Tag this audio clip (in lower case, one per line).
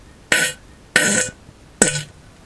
fart